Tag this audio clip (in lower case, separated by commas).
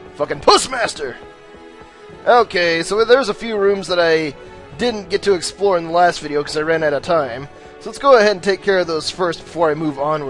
speech, music